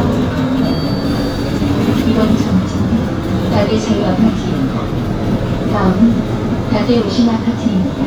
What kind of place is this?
bus